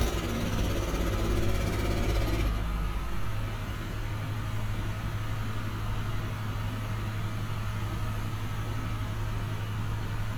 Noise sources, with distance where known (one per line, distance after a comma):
jackhammer, far